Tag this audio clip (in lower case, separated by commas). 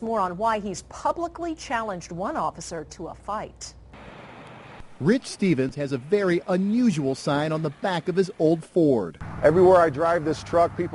speech, vehicle